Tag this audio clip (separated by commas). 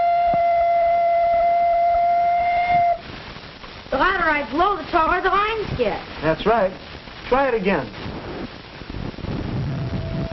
Music, Speech